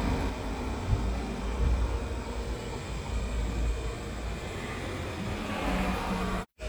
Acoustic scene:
street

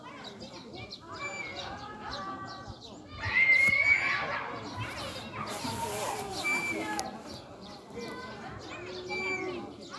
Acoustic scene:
residential area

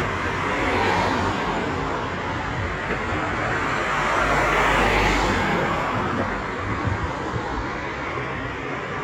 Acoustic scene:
street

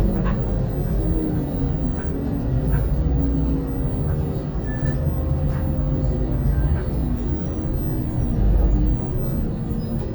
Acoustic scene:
bus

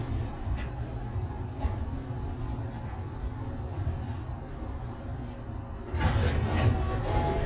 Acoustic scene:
elevator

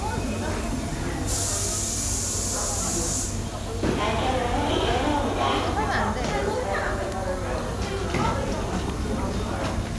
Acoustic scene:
subway station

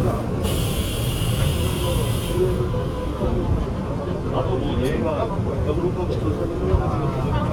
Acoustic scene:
subway train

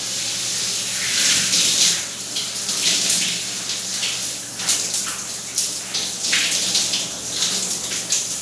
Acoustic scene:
restroom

